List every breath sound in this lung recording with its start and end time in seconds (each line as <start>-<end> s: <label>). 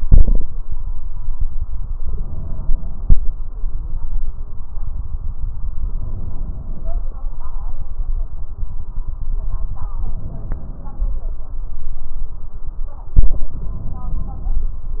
0.00-0.47 s: inhalation
2.00-3.18 s: inhalation
5.81-6.99 s: inhalation
9.95-11.32 s: inhalation
13.17-14.82 s: inhalation